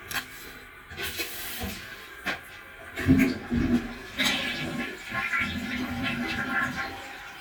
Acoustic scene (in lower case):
restroom